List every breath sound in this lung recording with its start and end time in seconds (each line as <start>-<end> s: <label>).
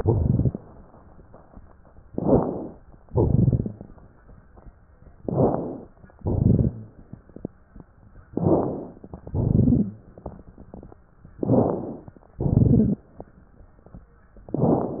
0.00-0.55 s: exhalation
0.00-0.55 s: crackles
2.09-2.79 s: inhalation
2.09-2.79 s: crackles
3.05-3.89 s: exhalation
3.05-3.89 s: crackles
5.22-5.90 s: inhalation
5.22-5.90 s: crackles
6.18-6.96 s: exhalation
6.18-6.96 s: crackles
8.37-9.15 s: inhalation
8.37-9.15 s: crackles
9.24-10.02 s: exhalation
9.24-10.02 s: crackles
11.40-12.18 s: inhalation
11.40-12.18 s: crackles
12.43-13.07 s: exhalation
12.43-13.07 s: crackles
14.48-15.00 s: inhalation
14.48-15.00 s: crackles